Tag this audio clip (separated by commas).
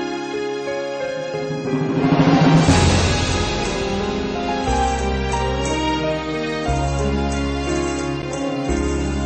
Music, Background music